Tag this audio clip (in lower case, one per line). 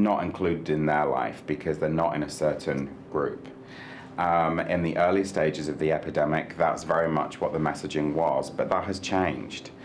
speech